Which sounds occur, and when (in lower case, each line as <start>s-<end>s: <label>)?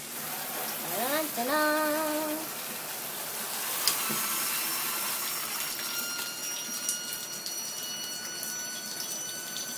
0.0s-9.7s: mechanisms
0.0s-9.7s: dribble
0.2s-0.8s: speech
0.8s-2.5s: singing
3.8s-4.2s: generic impact sounds
3.9s-9.7s: brief tone